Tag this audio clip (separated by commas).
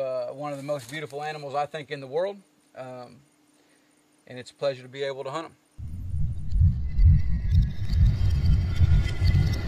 Speech